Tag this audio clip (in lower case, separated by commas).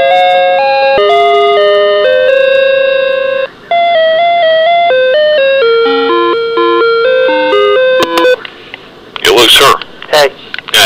music, speech